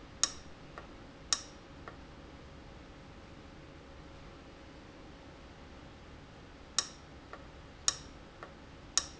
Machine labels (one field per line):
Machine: valve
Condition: abnormal